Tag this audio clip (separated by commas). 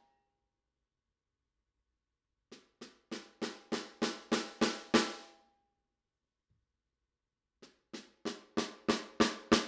Musical instrument, Drum, Music